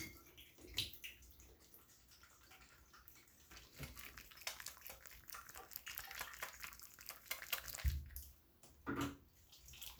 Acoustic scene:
restroom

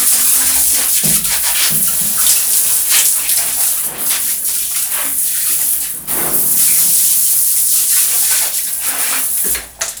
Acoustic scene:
restroom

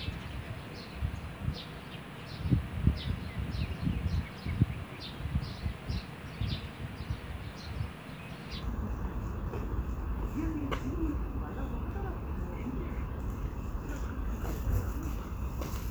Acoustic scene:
park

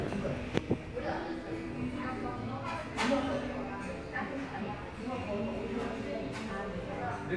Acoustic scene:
crowded indoor space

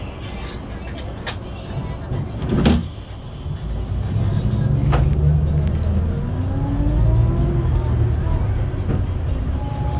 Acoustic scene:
bus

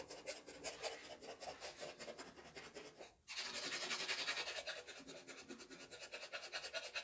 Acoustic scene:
restroom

